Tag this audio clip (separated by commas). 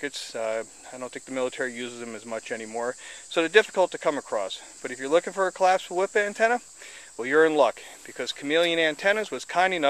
Speech